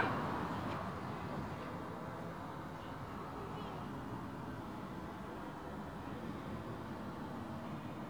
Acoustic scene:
residential area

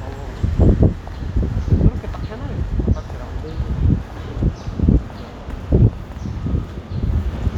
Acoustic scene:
street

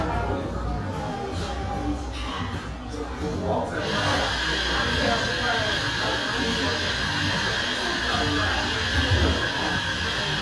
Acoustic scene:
cafe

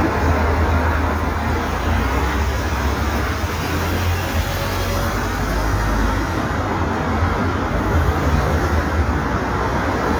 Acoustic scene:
street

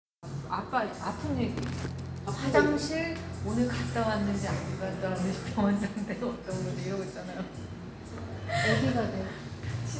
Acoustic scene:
cafe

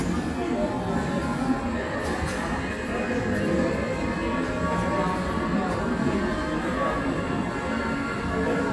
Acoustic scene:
cafe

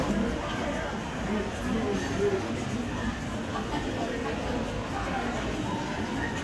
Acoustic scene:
crowded indoor space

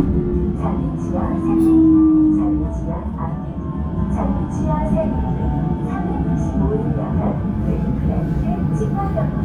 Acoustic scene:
subway train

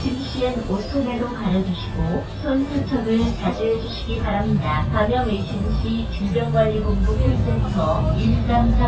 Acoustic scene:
bus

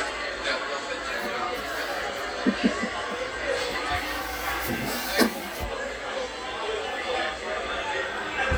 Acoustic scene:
cafe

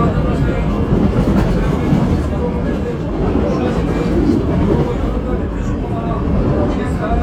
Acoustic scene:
subway train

